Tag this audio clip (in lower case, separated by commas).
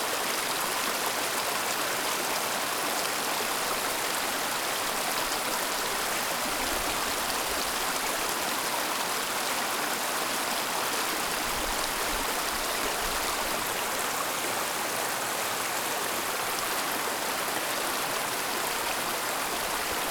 water, stream